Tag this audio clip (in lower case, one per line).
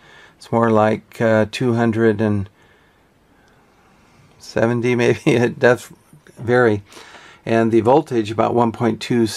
speech